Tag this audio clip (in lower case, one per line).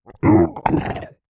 human voice